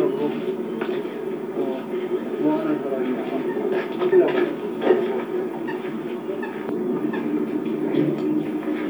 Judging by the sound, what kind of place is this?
park